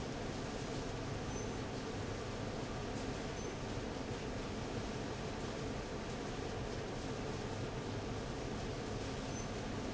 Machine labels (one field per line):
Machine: fan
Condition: abnormal